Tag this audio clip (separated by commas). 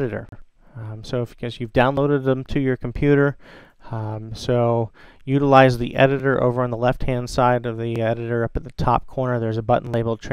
Speech